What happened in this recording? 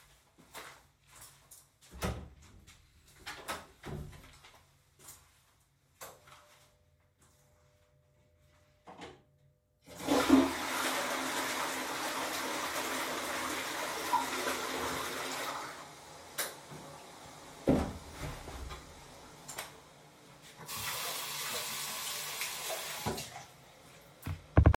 I walked to my toilet,opened the door,switched the lghts on flushed the toilet and turned off the lights and then closed the door and washed my hands